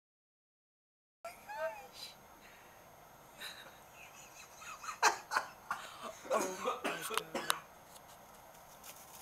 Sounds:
speech

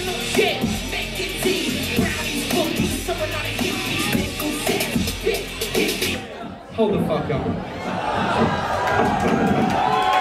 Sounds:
speech
music

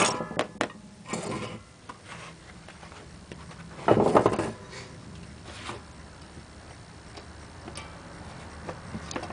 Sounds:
wood

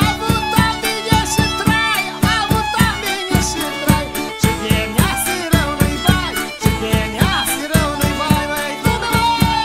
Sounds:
music

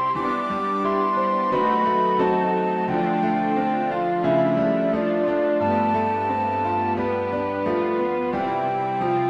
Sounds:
background music
theme music
music

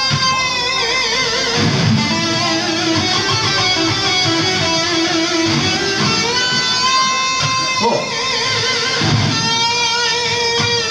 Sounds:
music
plucked string instrument
electric guitar
guitar
strum
bass guitar
musical instrument

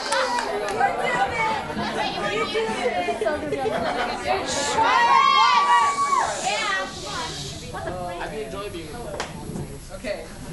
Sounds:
speech

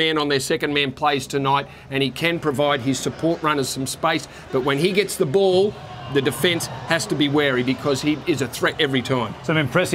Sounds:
speech

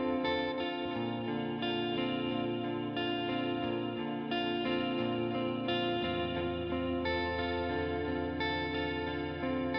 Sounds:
music

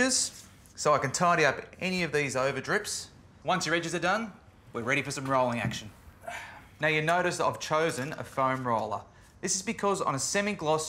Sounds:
speech

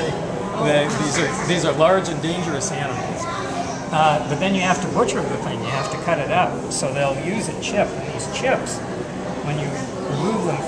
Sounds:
speech

